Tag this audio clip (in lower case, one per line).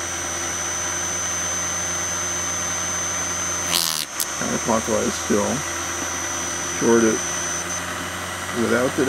inside a small room
drill
speech